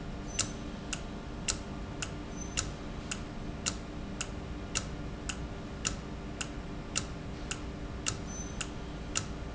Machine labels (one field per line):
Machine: valve